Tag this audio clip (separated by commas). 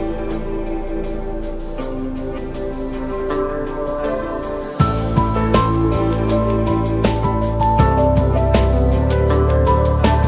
Music